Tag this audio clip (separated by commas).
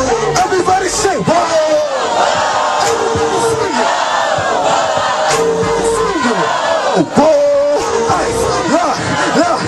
Music, Speech